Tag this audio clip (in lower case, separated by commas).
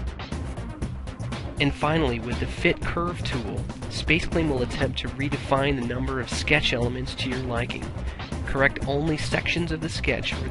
music, speech